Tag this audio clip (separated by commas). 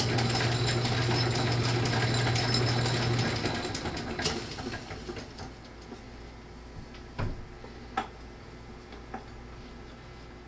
Tools